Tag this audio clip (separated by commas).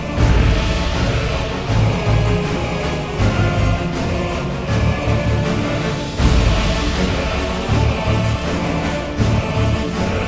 Music